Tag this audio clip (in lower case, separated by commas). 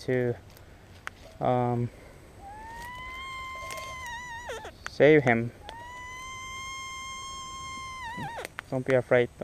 speech